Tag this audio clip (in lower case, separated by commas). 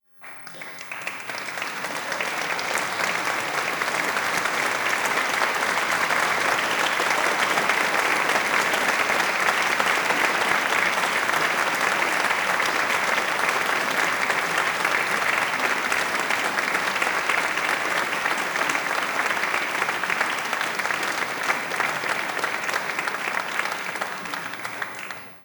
applause, human group actions